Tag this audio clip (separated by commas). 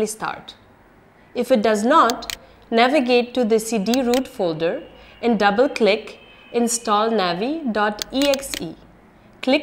Speech